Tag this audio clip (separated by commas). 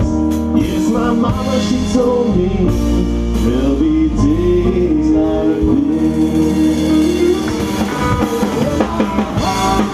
Music